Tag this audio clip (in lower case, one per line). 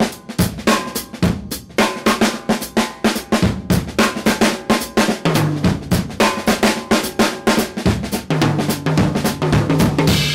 percussion
drum kit
bass drum
snare drum
musical instrument
drum
music
cymbal
hi-hat